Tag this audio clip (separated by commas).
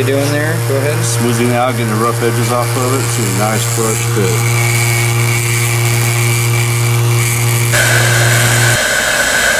Speech, Tools, Power tool